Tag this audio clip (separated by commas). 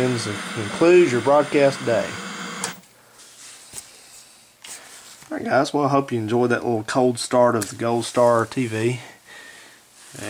Speech, Television